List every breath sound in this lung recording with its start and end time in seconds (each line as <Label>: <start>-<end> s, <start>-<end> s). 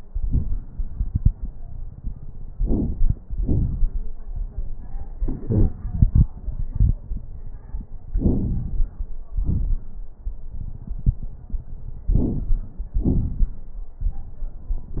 Inhalation: 2.49-3.15 s, 8.08-8.96 s, 12.10-12.80 s
Exhalation: 3.28-4.15 s, 9.35-9.96 s, 12.99-13.80 s
Crackles: 2.49-3.15 s, 3.28-4.15 s, 8.08-8.96 s, 9.35-9.96 s, 12.10-12.80 s, 12.99-13.80 s